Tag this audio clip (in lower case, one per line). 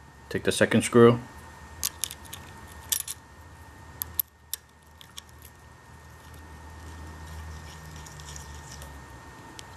speech
inside a small room